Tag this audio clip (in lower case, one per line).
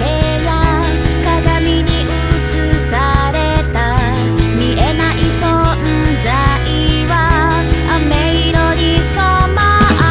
music